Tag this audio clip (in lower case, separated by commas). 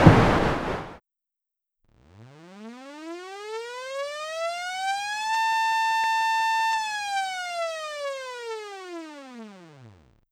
alarm